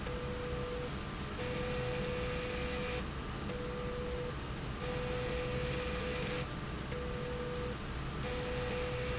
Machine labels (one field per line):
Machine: slide rail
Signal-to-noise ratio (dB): -6 dB